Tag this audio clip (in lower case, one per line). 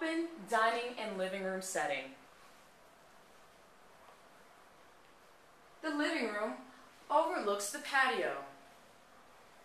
speech